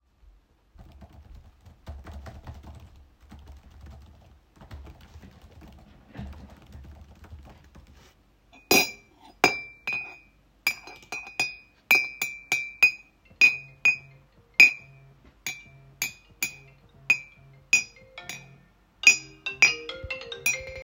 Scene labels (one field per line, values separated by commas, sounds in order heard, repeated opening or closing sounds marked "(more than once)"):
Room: living room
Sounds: keyboard typing, cutlery and dishes, phone ringing